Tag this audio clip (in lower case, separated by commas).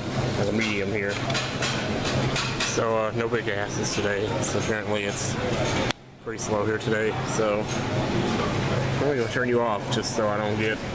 speech